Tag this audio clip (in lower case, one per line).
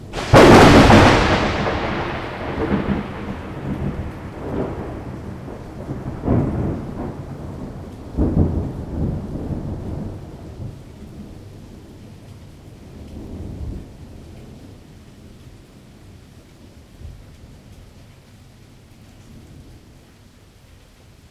thunder
thunderstorm